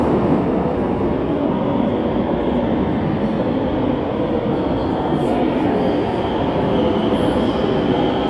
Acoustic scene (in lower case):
subway station